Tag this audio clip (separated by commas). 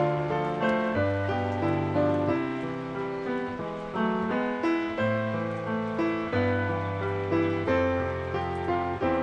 Stream, Music